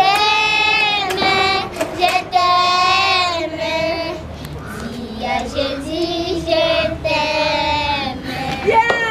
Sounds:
child singing

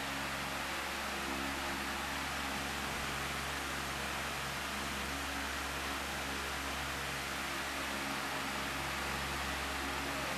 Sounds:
wind noise (microphone)

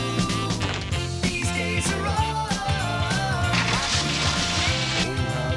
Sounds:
music

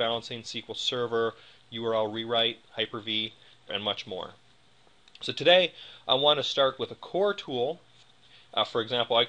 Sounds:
speech

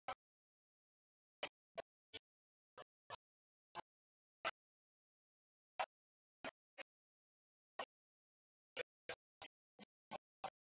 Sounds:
male singing
music

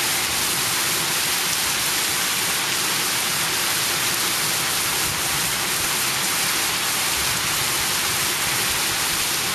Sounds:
rain on surface
rain

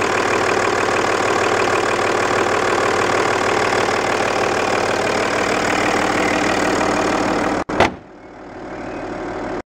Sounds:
vehicle
car
heavy engine (low frequency)

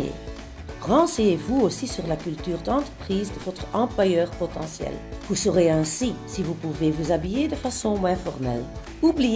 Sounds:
speech
music

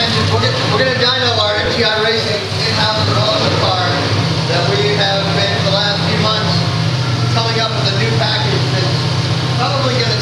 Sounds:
speech

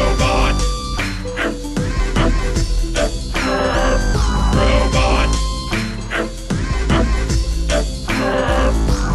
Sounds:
music

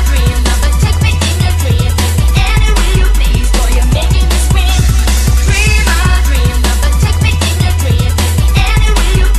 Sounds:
music
sampler

